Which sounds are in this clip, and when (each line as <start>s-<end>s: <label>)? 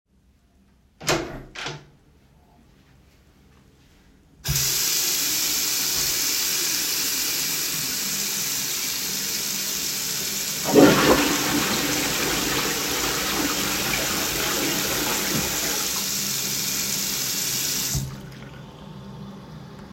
1.0s-1.9s: door
4.4s-18.1s: running water
10.6s-15.9s: toilet flushing